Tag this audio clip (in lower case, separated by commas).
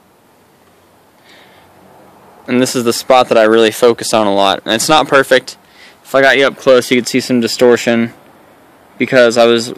speech